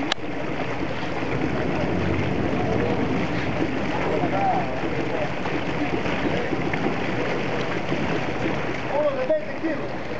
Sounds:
Boat, Vehicle, Speech

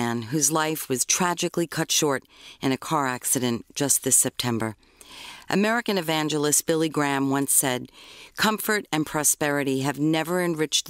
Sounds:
Speech

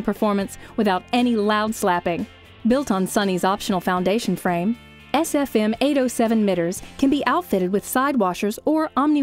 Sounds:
Music, Speech

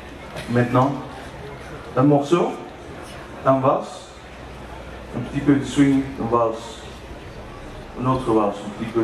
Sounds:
Speech

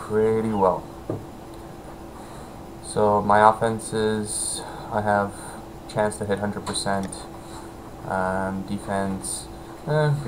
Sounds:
Speech

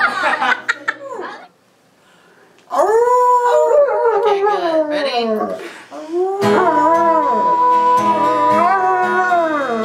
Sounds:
Acoustic guitar, Dog, Speech, Animal, Whimper (dog), Musical instrument, Music, Bow-wow, Guitar

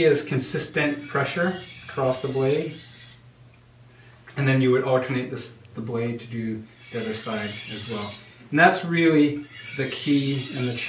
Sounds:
sharpen knife

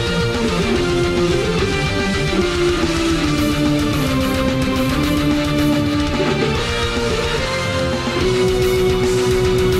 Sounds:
Musical instrument, Music, Guitar, Bass guitar, Plucked string instrument

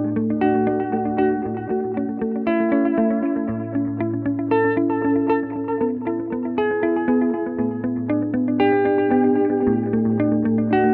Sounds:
Music

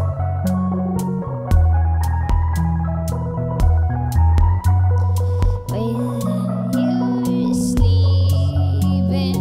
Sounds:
Music

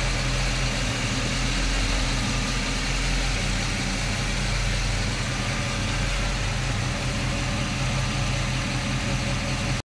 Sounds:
Car, Vehicle

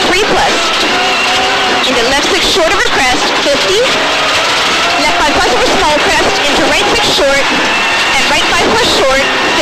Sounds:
Car, Vehicle, Speech

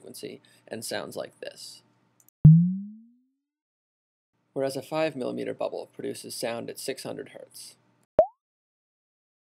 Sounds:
Speech, Synthesizer

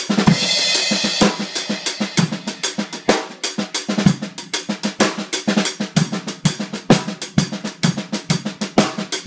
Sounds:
playing snare drum

